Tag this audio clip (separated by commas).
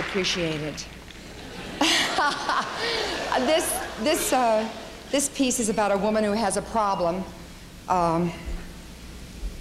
Speech, monologue